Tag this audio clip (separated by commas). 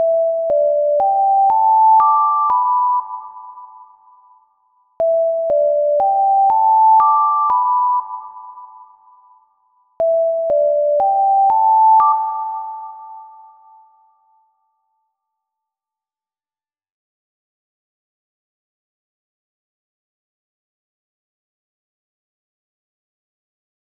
Alarm